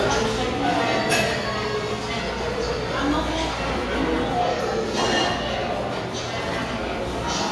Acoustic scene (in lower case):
restaurant